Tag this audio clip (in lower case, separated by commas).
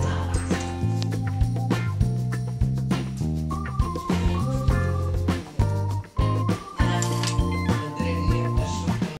music, speech